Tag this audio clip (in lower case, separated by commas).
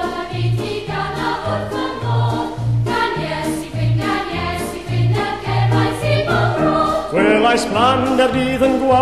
music, traditional music